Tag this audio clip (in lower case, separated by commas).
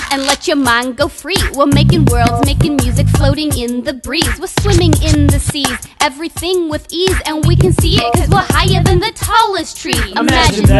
music, exciting music